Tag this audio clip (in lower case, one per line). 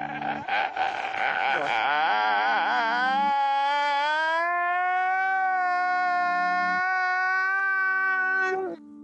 music